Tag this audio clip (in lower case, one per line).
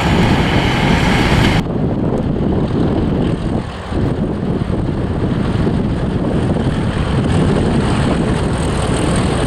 clickety-clack
train
rail transport
train wagon